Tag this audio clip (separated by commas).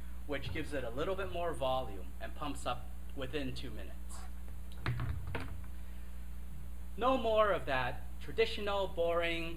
Speech